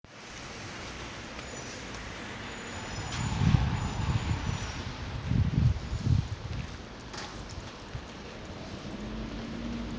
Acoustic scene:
residential area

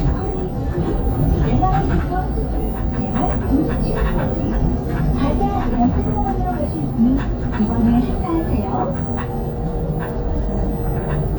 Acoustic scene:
bus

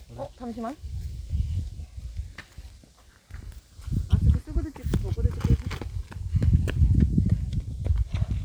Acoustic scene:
park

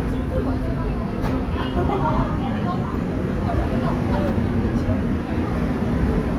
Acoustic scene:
subway station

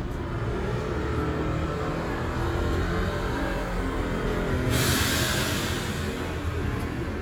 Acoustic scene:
street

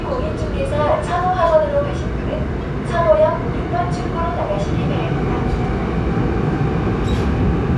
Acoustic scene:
subway train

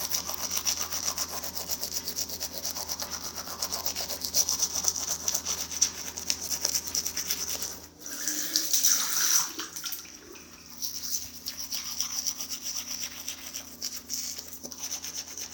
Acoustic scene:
restroom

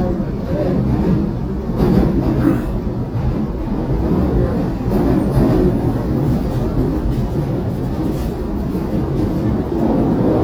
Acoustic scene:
subway train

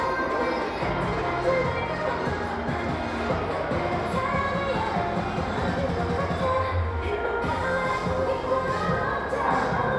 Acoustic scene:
crowded indoor space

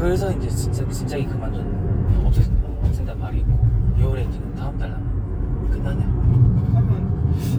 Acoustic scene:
car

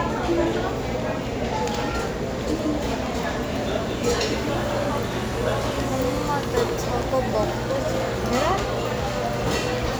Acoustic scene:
crowded indoor space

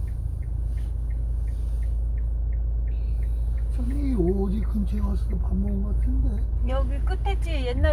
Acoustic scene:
car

